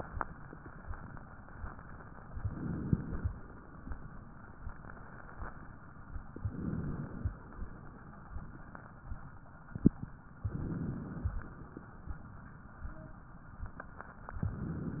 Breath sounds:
Inhalation: 2.35-3.33 s, 6.35-7.34 s, 10.44-11.42 s, 14.36-15.00 s

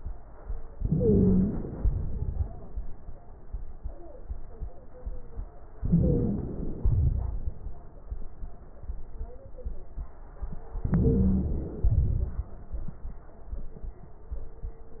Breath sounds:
Inhalation: 0.76-1.76 s, 5.83-6.84 s, 10.81-11.82 s
Exhalation: 1.77-2.77 s, 6.84-7.85 s, 11.84-12.54 s
Wheeze: 0.76-1.76 s, 5.83-6.84 s, 10.81-11.82 s

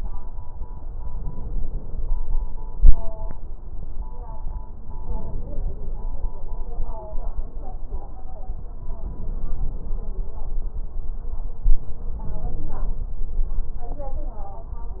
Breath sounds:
Inhalation: 1.07-2.14 s, 4.98-6.05 s, 9.01-10.07 s, 12.12-13.18 s

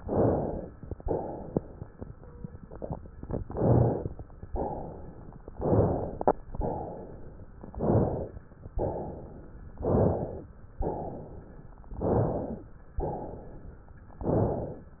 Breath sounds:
Inhalation: 0.00-0.72 s, 3.43-4.16 s, 5.60-6.32 s, 7.72-8.46 s, 9.87-10.51 s, 11.97-12.62 s, 14.29-15.00 s
Exhalation: 1.02-1.75 s, 4.48-5.39 s, 6.60-7.51 s, 8.75-9.67 s, 10.83-11.76 s, 12.98-13.90 s

